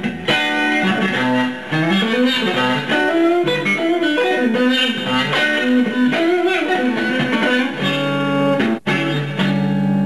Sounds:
plucked string instrument, guitar, musical instrument, acoustic guitar, music, strum

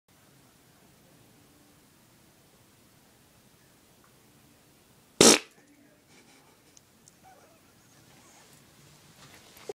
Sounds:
pets, dog, animal, fart

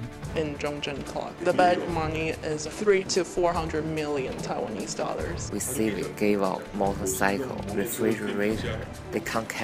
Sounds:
music, speech

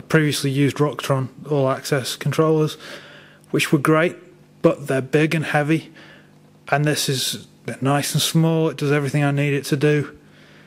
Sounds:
speech

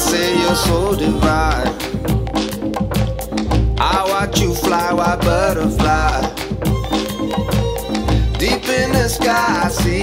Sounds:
musical instrument, music, fiddle

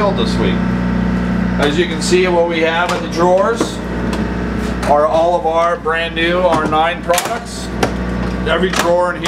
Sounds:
speech

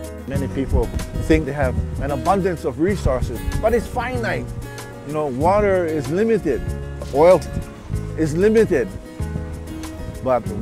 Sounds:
speech, music

